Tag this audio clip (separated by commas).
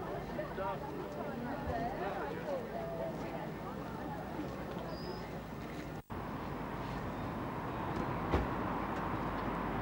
Speech